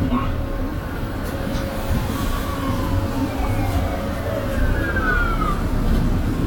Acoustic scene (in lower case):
bus